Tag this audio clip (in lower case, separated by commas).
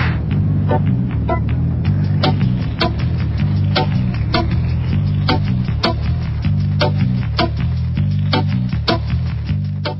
music